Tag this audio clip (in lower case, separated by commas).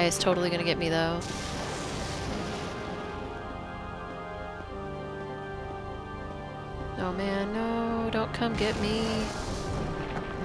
music, speech